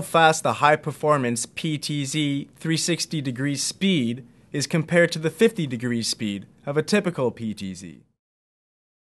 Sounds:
speech

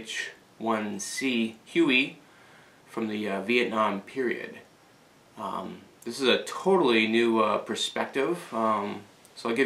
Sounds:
speech

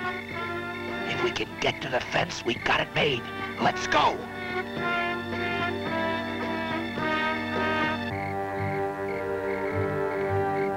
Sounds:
speech
music

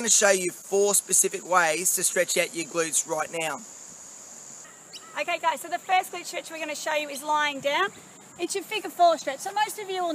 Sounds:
speech

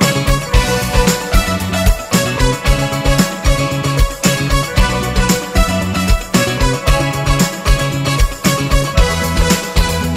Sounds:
music

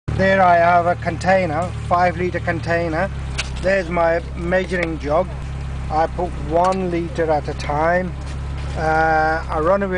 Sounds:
motor vehicle (road)
car
speech
vehicle
engine

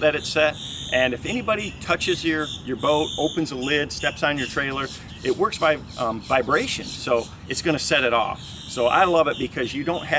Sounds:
speech

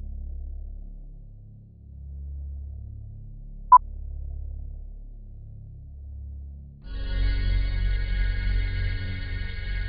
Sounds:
music

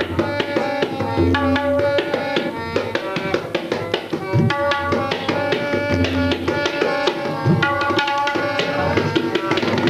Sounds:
music

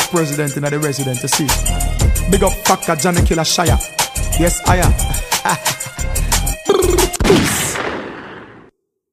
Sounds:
hip hop music
reggae
music

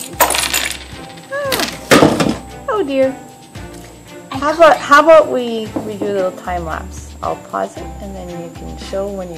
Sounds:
speech
music
inside a small room

